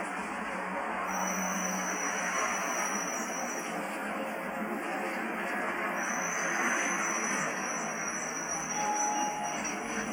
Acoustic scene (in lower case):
bus